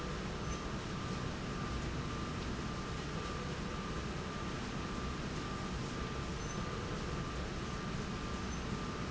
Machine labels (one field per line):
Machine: slide rail